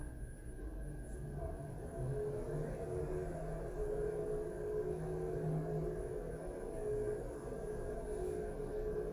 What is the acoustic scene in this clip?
elevator